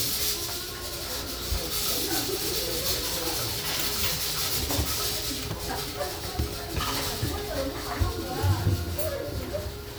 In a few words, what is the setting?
restaurant